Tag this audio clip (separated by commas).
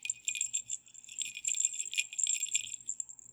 Bell